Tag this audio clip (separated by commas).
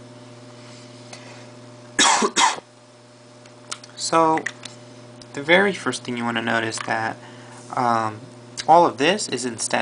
Speech